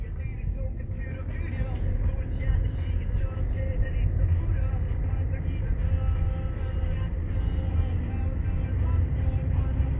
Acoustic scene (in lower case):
car